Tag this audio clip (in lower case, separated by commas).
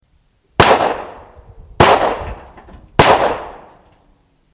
gunshot, explosion